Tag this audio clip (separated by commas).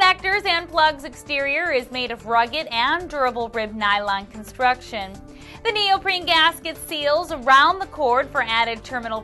Speech, Music